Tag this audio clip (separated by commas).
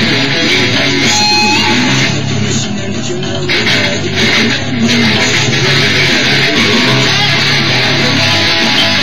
Guitar, Acoustic guitar, Musical instrument, Electric guitar, Music, Plucked string instrument, playing electric guitar, Strum